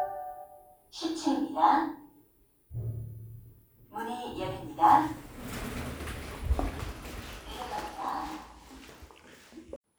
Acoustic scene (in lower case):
elevator